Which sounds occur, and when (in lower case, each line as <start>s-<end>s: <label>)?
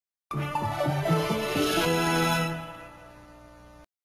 0.3s-3.8s: music